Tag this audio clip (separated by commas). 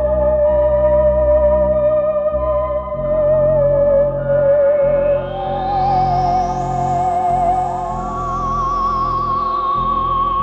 playing theremin